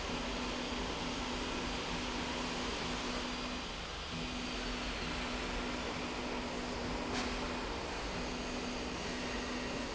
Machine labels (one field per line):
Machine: slide rail